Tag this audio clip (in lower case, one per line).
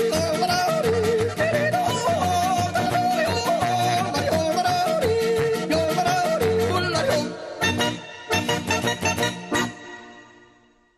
yodelling